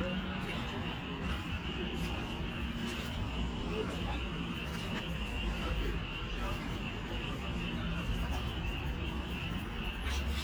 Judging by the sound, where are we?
in a park